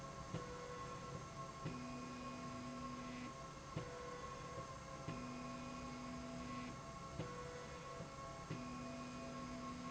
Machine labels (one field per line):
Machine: slide rail